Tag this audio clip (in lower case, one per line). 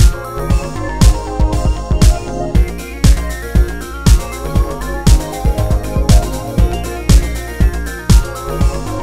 music